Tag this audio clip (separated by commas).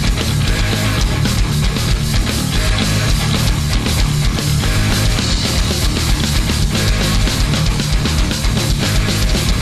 Music